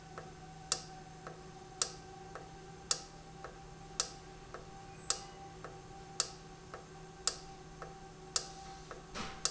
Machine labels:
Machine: valve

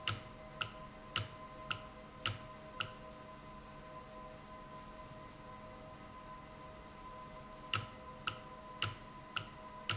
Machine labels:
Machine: valve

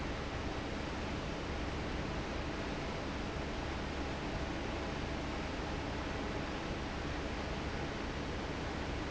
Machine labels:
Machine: fan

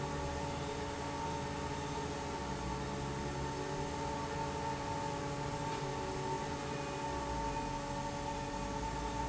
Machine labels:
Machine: fan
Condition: normal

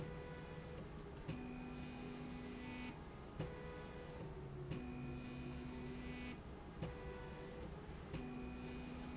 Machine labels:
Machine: slide rail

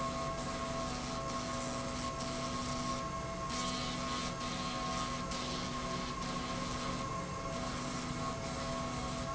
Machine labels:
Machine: slide rail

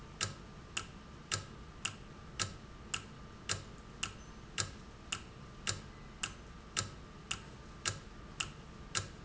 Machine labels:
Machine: valve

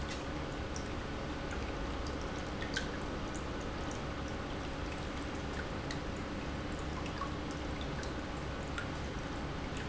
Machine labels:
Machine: pump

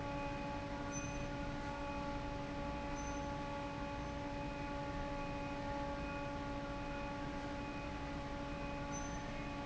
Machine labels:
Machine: fan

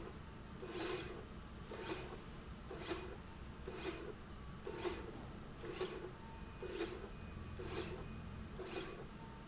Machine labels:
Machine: slide rail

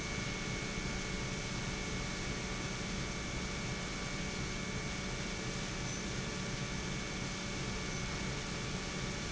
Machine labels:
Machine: pump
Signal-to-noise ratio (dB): -6 dB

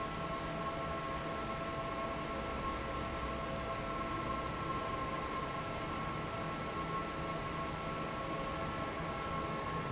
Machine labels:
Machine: fan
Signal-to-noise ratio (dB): -6 dB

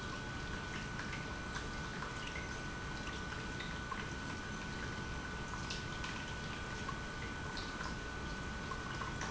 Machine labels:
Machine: pump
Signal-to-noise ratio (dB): 0 dB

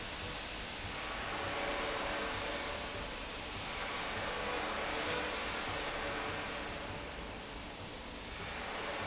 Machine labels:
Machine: slide rail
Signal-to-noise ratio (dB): -6 dB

